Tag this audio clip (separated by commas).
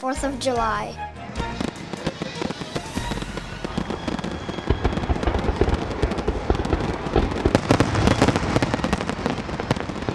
Music, Fireworks, Speech